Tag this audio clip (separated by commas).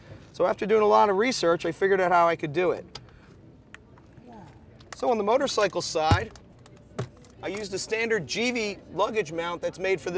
Speech